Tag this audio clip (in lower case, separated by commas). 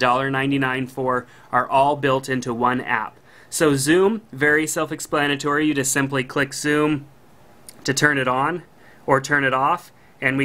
speech